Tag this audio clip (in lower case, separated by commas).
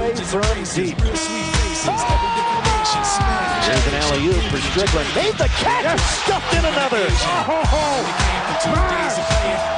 music, speech, exciting music